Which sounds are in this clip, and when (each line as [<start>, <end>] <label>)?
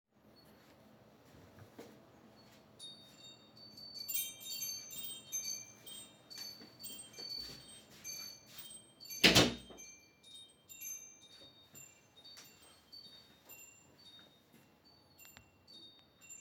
[2.26, 16.41] bell ringing
[5.91, 9.03] footsteps
[8.96, 9.69] door